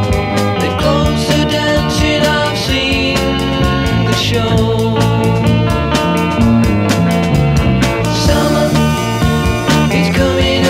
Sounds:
Music

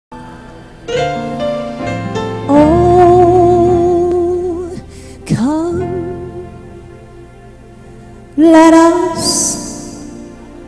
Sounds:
Singing, Musical instrument, Tender music, Music, Christian music

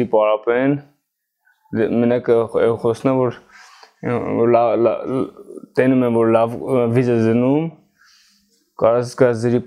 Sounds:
striking pool

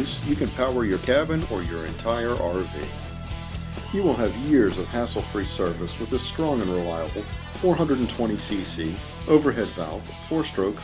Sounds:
Music, Speech

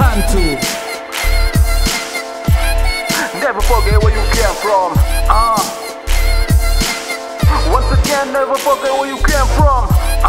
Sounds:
Rapping, Music, Hip hop music

